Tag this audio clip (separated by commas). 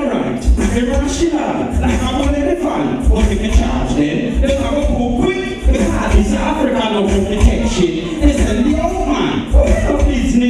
Music